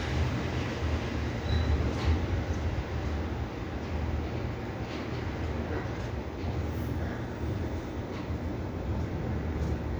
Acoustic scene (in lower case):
residential area